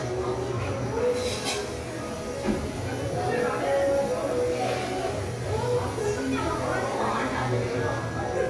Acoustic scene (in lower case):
cafe